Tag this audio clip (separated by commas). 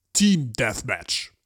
Speech, Human voice, man speaking